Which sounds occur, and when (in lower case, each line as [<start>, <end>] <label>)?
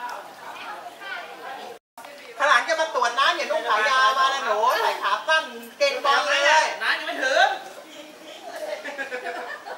[0.00, 1.79] background noise
[0.00, 1.79] hubbub
[0.05, 0.13] tick
[1.98, 2.04] tick
[1.98, 2.35] woman speaking
[1.98, 8.87] conversation
[1.98, 9.75] background noise
[2.16, 2.21] tick
[2.39, 7.60] man speaking
[7.85, 8.82] man speaking
[8.68, 9.75] giggle